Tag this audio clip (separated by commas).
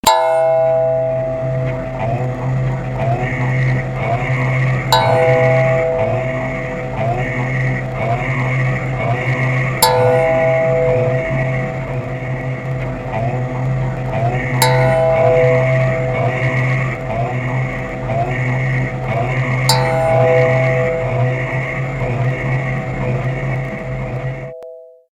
Singing, Human voice